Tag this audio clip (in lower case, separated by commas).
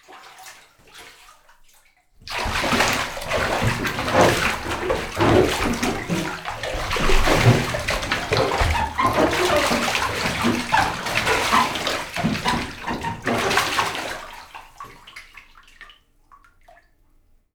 home sounds, bathtub (filling or washing)